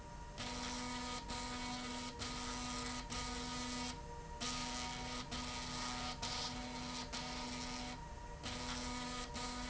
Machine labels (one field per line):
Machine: slide rail